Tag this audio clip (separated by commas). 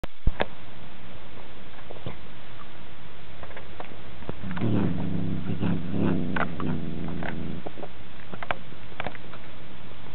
Animal, Cat